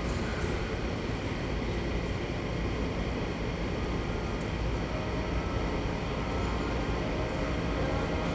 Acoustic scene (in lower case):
subway station